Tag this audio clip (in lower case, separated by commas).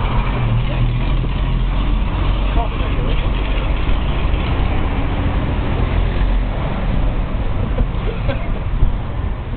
driving buses, vehicle, bus